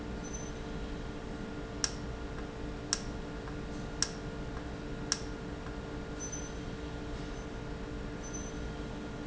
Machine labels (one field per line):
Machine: valve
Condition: normal